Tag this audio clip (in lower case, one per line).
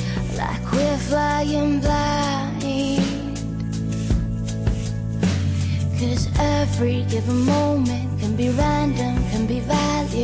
music